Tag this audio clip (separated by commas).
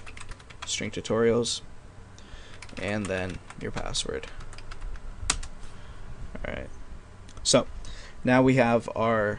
Speech